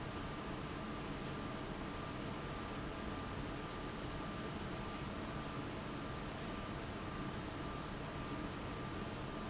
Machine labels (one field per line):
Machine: fan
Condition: abnormal